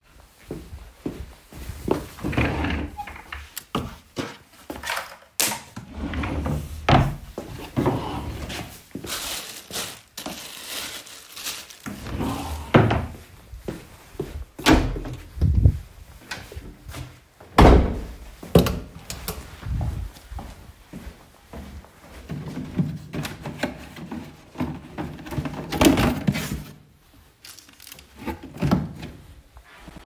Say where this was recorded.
living room, hallway